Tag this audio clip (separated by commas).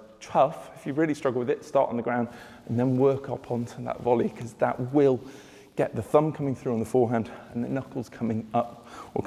playing squash